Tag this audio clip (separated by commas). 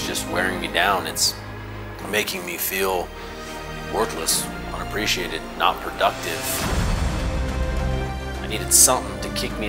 Speech, Music